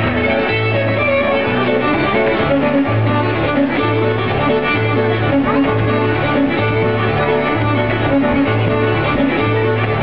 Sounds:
music, musical instrument, violin

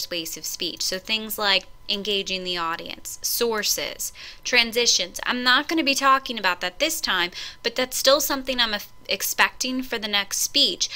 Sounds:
woman speaking, speech, narration

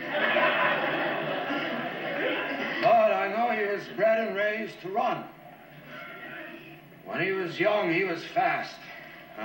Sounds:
speech

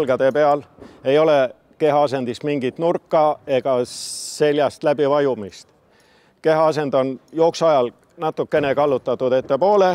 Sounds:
inside a large room or hall, speech

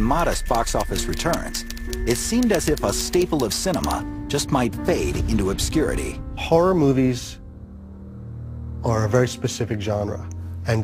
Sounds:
music, speech

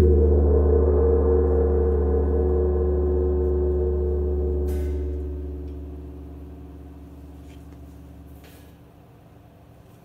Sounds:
playing gong

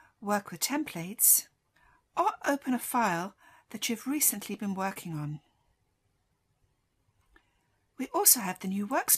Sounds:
speech

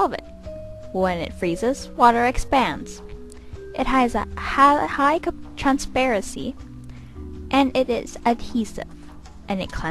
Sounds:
music, speech

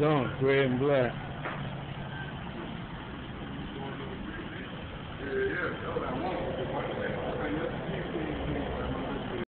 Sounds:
speech

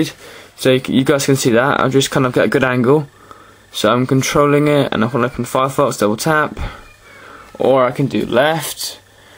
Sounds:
speech

